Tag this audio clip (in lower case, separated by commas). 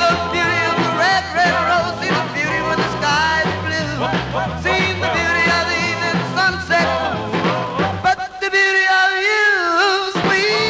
music